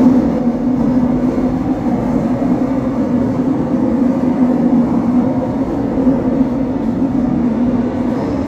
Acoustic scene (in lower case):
subway train